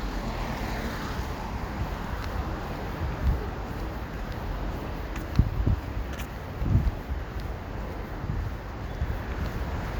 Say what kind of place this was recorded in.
street